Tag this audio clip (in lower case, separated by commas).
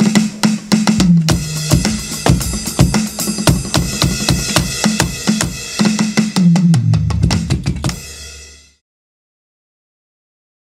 drum kit, musical instrument, music, drum